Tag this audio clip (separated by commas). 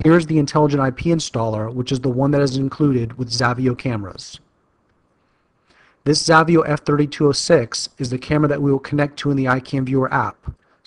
Speech